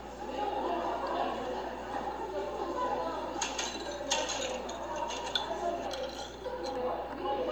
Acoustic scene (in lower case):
cafe